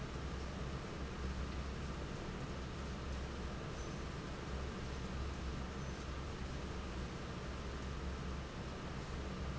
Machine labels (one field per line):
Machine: fan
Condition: normal